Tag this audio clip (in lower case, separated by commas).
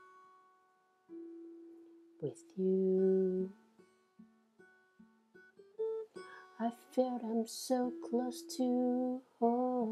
musical instrument, plucked string instrument, strum, guitar, music